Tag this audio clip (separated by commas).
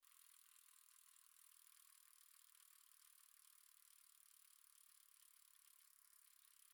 Vehicle, Bicycle